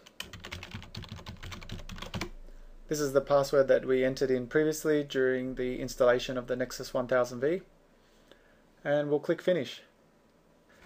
Someone types fast followed by a man speaking